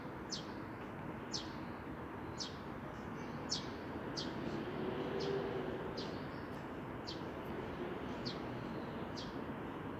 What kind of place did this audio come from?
residential area